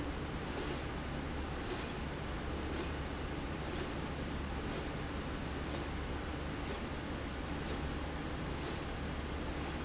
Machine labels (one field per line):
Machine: slide rail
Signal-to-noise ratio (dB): -6 dB